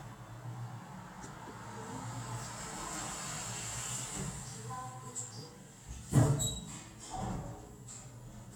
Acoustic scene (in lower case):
elevator